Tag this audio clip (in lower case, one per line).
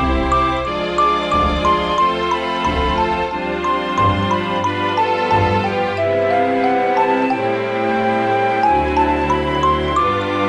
music